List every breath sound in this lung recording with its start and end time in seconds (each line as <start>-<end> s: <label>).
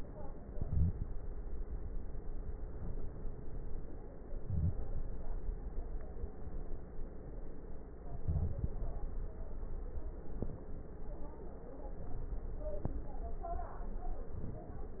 0.52-1.09 s: inhalation
4.42-4.84 s: inhalation
8.10-8.79 s: inhalation
8.10-8.79 s: crackles